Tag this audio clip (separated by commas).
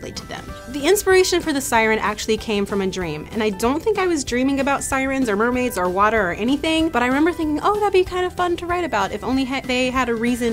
Music, Speech